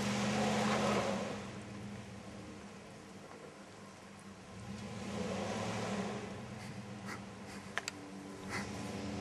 A truck is revving its engine